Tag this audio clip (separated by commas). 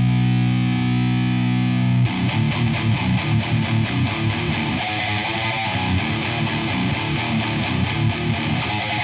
Sound effect, Music